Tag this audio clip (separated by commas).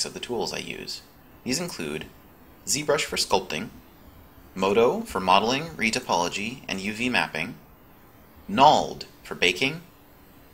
Speech